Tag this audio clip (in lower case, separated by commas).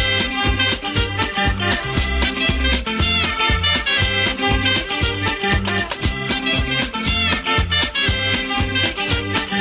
music